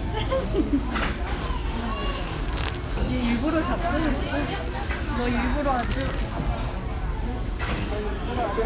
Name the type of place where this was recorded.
restaurant